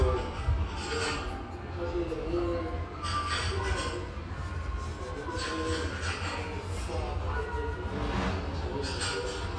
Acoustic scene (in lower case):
restaurant